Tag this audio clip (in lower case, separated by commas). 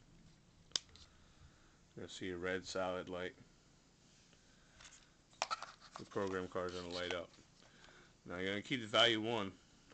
inside a small room, speech